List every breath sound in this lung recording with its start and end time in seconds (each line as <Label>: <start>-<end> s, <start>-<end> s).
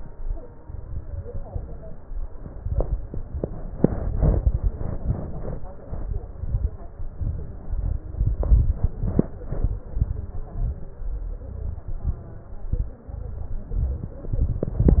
Inhalation: 0.61-1.35 s, 2.60-3.13 s, 6.37-6.89 s, 7.60-8.13 s, 10.47-11.00 s, 12.03-12.70 s, 13.76-14.33 s
Exhalation: 1.50-2.24 s, 3.25-3.78 s, 5.81-6.34 s, 7.05-7.58 s, 8.25-8.78 s, 9.90-10.43 s, 11.40-11.88 s, 13.09-13.76 s, 14.37-15.00 s
Crackles: 0.61-1.35 s, 1.50-2.24 s, 2.60-3.13 s, 3.25-3.78 s, 5.81-6.34 s, 6.37-6.89 s, 7.05-7.58 s, 7.60-8.13 s, 8.25-8.78 s, 9.90-10.43 s, 10.47-11.00 s, 11.40-11.88 s, 12.03-12.70 s, 13.09-13.76 s, 13.76-14.33 s, 14.37-15.00 s